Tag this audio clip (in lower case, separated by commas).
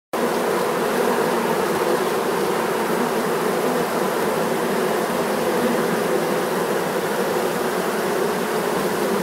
bee or wasp, fly, insect